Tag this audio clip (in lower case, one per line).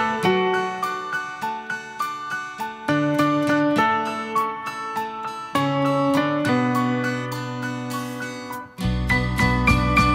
music